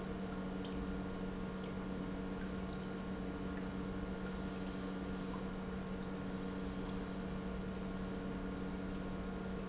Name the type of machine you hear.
pump